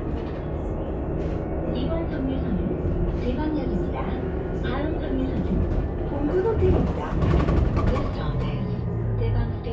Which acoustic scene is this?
bus